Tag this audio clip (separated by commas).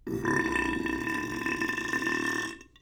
eructation